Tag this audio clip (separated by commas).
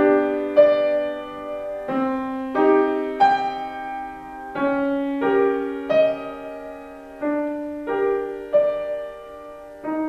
Piano, Keyboard (musical), Music, Musical instrument